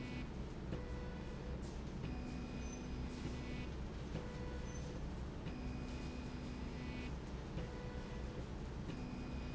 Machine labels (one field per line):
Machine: slide rail